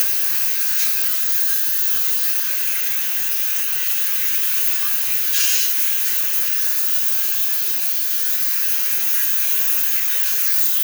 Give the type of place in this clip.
restroom